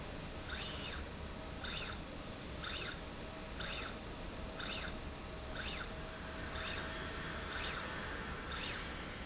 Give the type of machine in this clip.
slide rail